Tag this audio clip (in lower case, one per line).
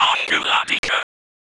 whispering
human voice